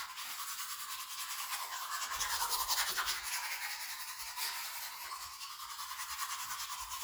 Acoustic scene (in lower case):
restroom